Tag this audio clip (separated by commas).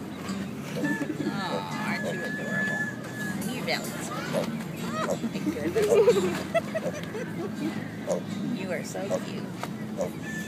Speech, Music